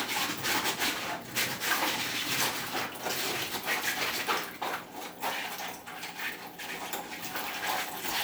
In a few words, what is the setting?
kitchen